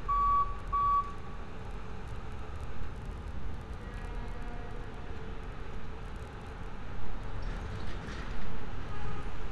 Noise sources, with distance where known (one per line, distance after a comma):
engine of unclear size, near
reverse beeper, near